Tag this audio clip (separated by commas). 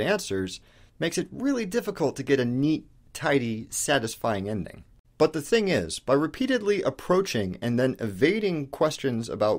Speech